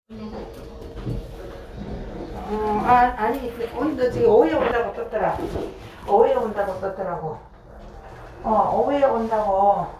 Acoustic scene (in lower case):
elevator